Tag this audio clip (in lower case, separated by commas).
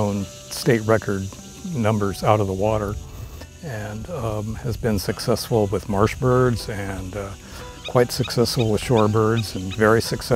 music, speech